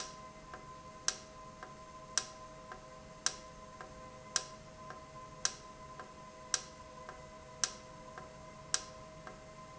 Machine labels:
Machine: valve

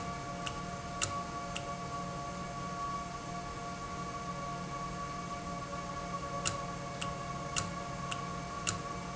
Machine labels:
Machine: valve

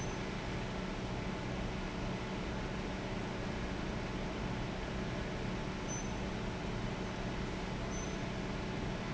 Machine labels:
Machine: fan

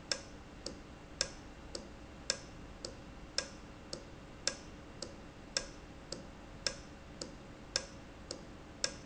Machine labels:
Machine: valve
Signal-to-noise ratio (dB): 6 dB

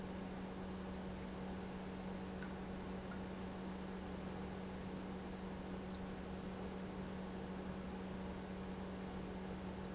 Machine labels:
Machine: pump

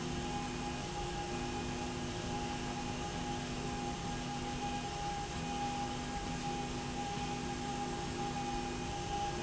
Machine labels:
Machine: slide rail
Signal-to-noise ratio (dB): -6 dB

